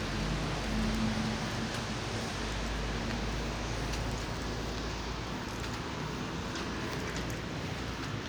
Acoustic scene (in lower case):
residential area